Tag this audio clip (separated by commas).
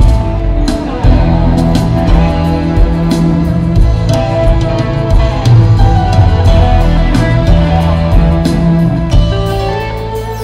Musical instrument, Music, fiddle